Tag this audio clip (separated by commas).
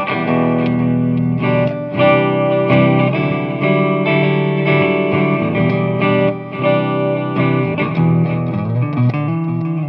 Plucked string instrument, Musical instrument, Guitar, Music